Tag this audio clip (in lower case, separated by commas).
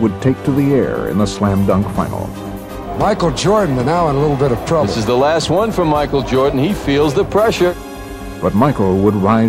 speech, music